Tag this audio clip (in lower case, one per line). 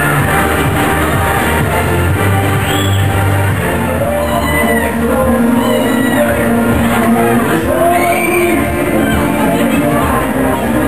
music